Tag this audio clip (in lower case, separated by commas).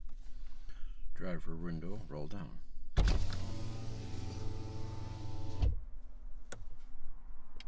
vehicle, motor vehicle (road), car